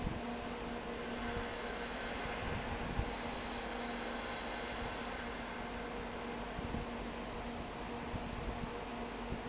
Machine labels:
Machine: fan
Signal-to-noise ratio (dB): 0 dB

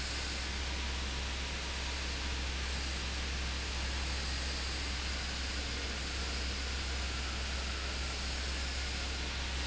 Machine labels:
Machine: fan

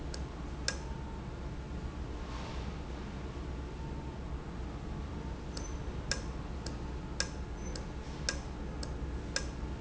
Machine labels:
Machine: valve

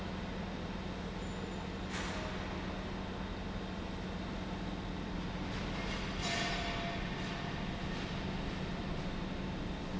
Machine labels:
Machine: pump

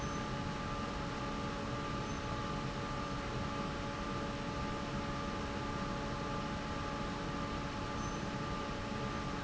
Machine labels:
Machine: fan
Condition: normal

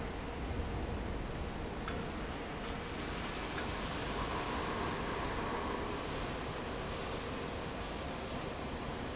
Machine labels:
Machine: fan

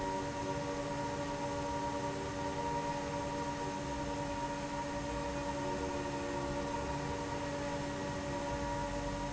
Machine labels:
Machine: fan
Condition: abnormal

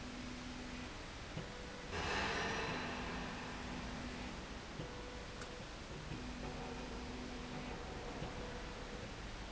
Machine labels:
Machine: slide rail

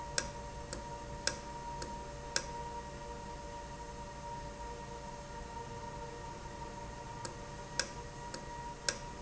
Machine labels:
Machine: valve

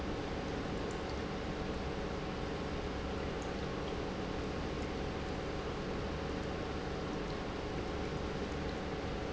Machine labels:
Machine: pump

